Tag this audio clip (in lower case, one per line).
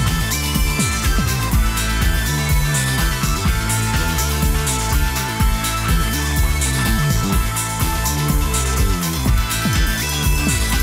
music